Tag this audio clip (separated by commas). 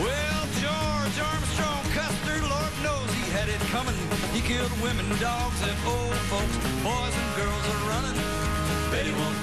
Music